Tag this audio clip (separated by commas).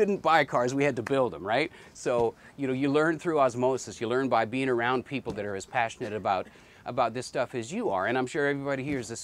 Speech